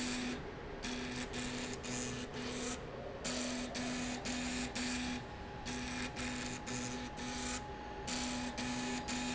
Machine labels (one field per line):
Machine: slide rail